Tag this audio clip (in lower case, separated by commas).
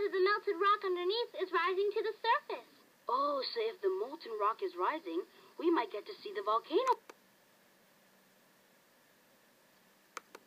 speech